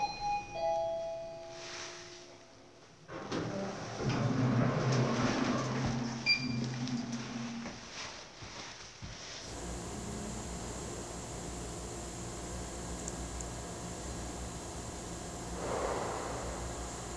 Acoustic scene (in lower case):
elevator